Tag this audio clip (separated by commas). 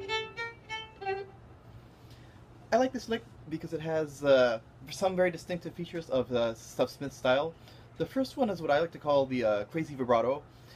Musical instrument, fiddle, Music, Speech